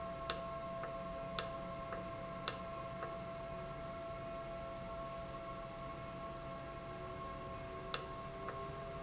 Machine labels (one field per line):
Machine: valve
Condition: normal